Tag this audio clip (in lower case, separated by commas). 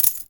coin (dropping), home sounds